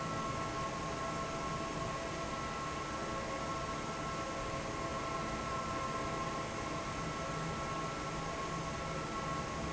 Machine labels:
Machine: fan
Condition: normal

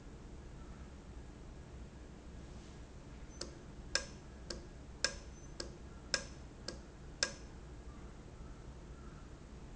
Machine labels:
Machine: valve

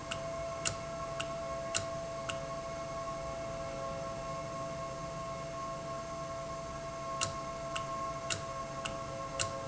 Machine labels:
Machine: valve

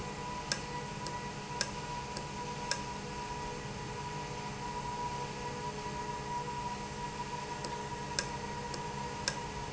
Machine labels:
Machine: valve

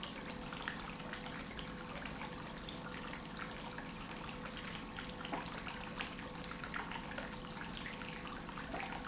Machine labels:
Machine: pump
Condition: normal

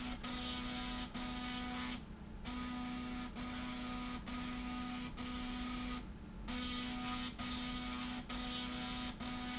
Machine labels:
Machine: slide rail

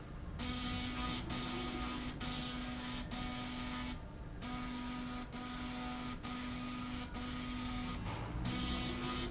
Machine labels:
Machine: slide rail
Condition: abnormal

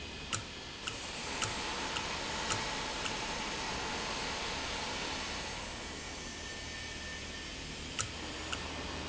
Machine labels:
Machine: valve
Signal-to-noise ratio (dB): -6 dB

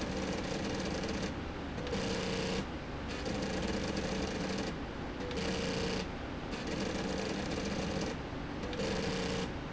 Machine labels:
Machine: slide rail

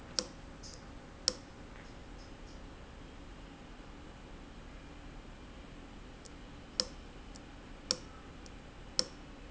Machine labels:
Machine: valve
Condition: abnormal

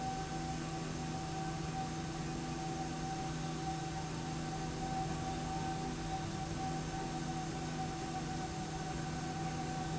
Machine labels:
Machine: slide rail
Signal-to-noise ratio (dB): -6 dB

